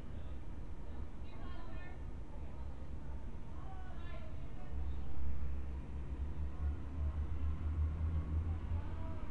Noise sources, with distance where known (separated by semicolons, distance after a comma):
person or small group talking, near